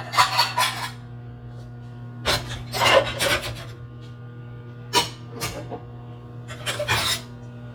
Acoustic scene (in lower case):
kitchen